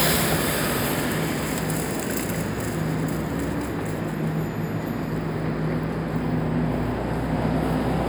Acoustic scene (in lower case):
street